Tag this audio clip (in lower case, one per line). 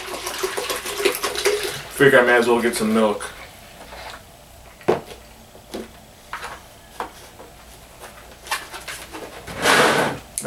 inside a small room
speech